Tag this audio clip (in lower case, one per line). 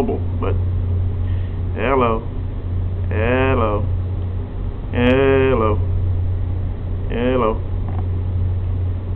inside a small room
speech